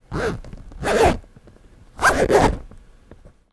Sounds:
zipper (clothing)
home sounds

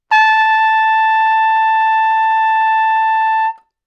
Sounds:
brass instrument
music
musical instrument
trumpet

